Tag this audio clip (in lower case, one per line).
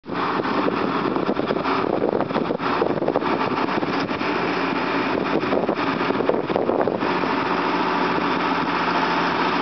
vehicle